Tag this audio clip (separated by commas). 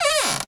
Cupboard open or close, Door, home sounds